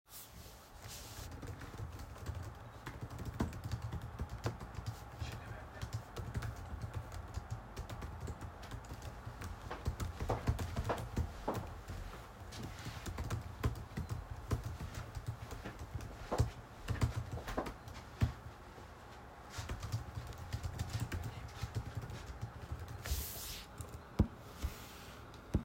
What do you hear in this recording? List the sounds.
keyboard typing, footsteps